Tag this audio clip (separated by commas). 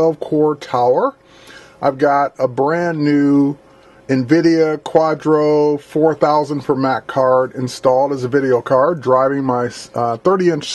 Speech